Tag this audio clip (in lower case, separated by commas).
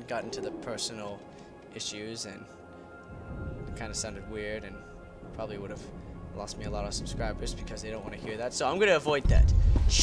music, speech